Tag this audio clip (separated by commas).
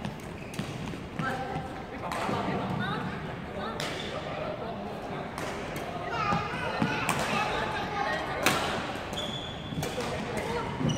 playing badminton